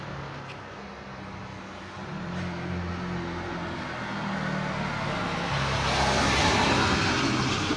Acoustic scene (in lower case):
residential area